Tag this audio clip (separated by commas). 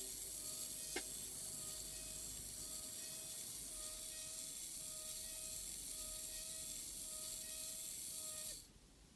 inside a small room